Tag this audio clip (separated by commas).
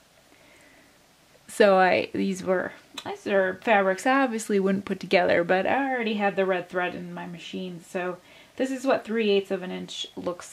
Speech